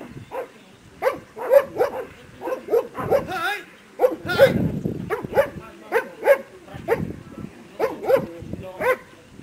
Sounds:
Animal, Speech, pets, Dog

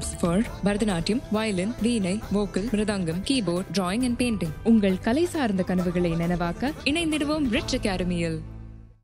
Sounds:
Speech, Music

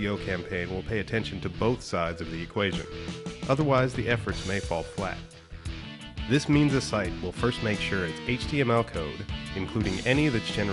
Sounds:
Speech, Music

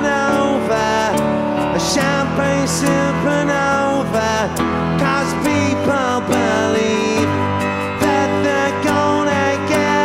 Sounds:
playing sitar

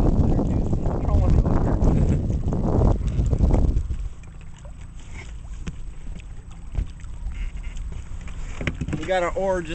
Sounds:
Speech, Vehicle, Water vehicle

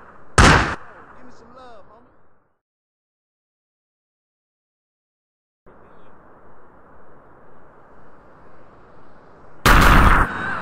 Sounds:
Sound effect, Speech

